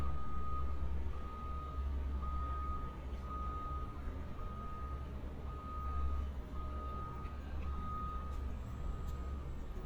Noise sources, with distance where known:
reverse beeper, far

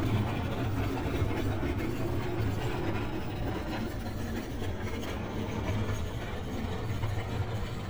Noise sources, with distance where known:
large-sounding engine

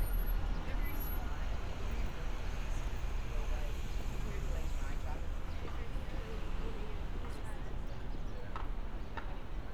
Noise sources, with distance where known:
engine of unclear size
person or small group talking

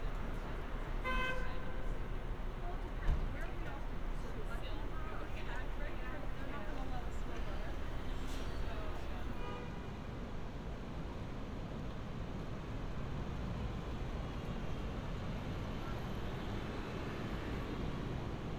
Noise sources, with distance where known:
car horn

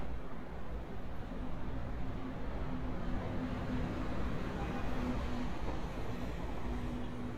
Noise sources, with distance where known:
engine of unclear size, far
car horn, far

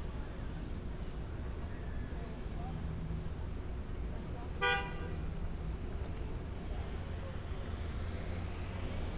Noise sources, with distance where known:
car horn, near

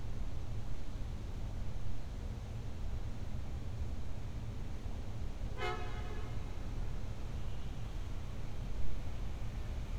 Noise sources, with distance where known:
car horn, near

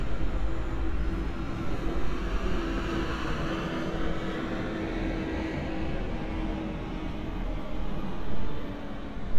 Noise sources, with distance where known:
medium-sounding engine, far

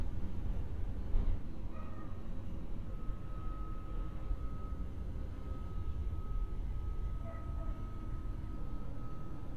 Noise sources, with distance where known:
background noise

